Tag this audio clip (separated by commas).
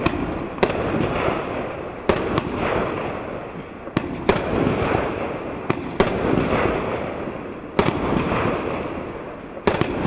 fireworks banging, Fireworks